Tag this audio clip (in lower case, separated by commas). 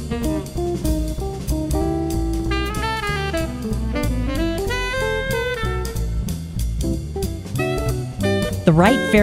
jazz